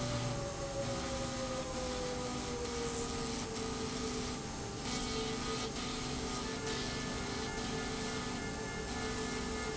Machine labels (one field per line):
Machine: slide rail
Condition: abnormal